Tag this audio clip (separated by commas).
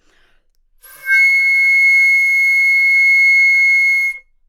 Music, Musical instrument, woodwind instrument